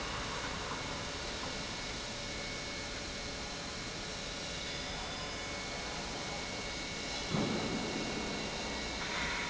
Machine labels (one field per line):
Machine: pump